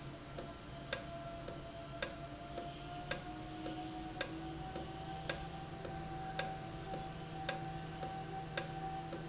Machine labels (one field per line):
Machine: valve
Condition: normal